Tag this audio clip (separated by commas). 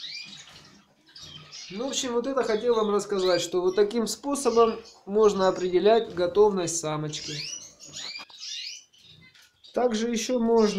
canary calling